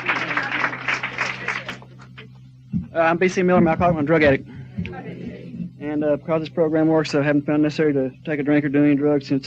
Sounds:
man speaking, Speech

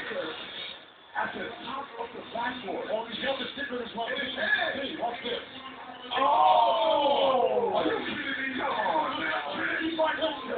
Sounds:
Speech

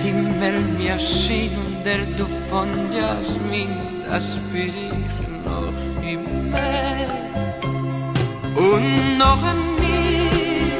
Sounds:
Music

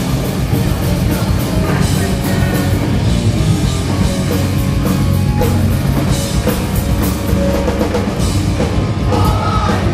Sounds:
Music

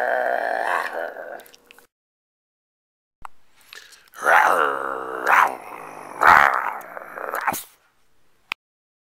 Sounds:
Domestic animals, Animal

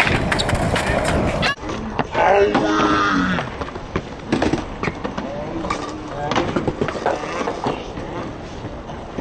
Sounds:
outside, urban or man-made, Speech

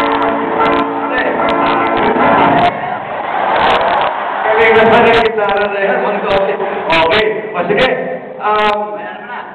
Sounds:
Speech, Guitar, Plucked string instrument, Strum, Musical instrument, Music

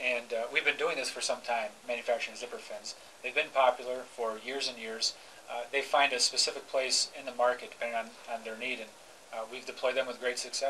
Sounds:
Speech

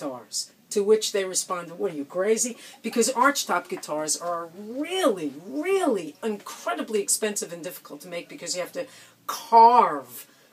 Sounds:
Speech

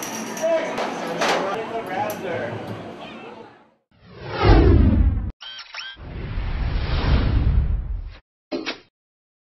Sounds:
Speech, inside a large room or hall

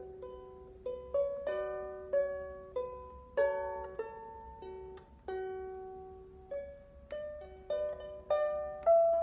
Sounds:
playing harp

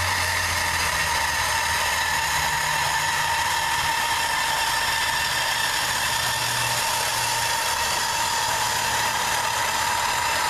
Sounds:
inside a large room or hall

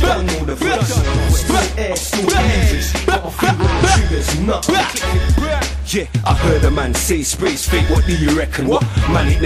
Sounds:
Music

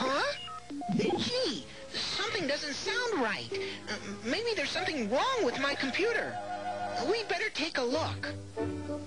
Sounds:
Music, Electronic music, Speech

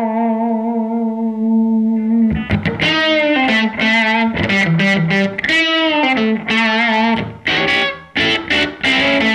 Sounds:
Plucked string instrument, Music, Guitar, Effects unit, Musical instrument, Distortion

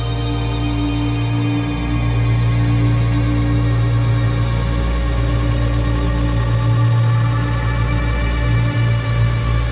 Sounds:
Music, Scary music

